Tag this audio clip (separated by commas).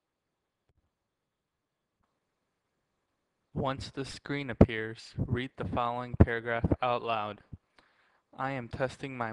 Speech